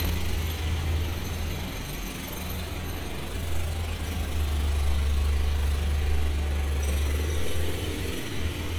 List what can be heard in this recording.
jackhammer